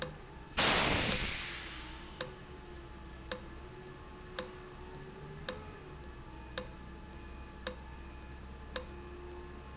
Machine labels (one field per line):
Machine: valve